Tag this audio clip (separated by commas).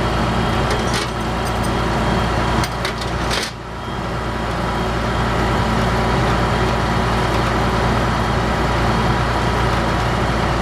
Vehicle